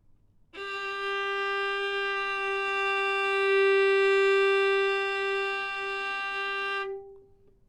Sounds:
Musical instrument, Music, Bowed string instrument

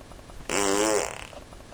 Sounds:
Fart

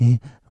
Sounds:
Respiratory sounds, Breathing

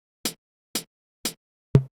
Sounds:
Hi-hat, Percussion, Music, Cymbal, Musical instrument

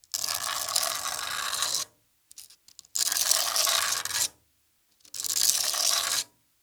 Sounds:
Tools

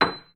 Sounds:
Music, Musical instrument, Piano, Keyboard (musical)

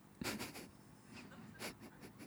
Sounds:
Human voice, Laughter

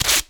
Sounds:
home sounds, duct tape

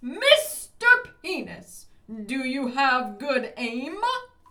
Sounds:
Human voice, Shout, Yell

